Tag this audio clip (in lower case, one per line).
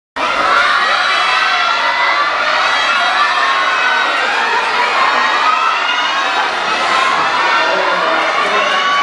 children shouting
crowd
cheering